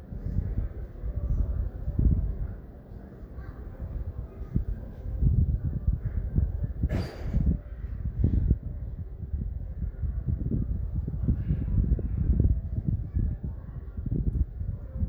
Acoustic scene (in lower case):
residential area